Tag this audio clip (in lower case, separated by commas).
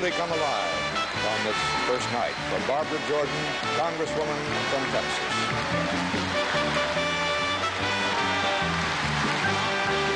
monologue, man speaking, speech, music